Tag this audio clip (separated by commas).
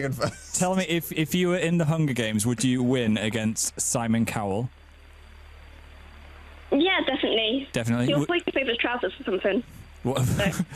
Radio, Speech